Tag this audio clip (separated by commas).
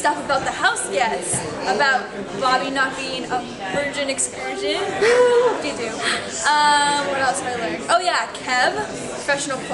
Speech